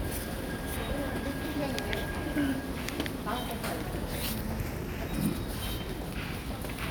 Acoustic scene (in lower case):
subway station